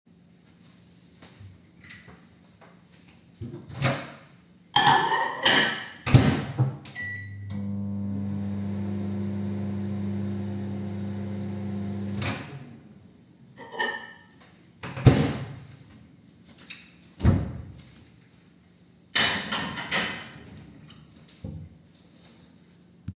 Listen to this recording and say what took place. I walk into the office, opening the door and taking a few footsteps simultaneously and closing the door, then I turn on the light and walk to my desk.